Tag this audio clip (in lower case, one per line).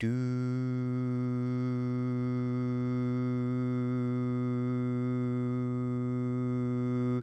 singing
human voice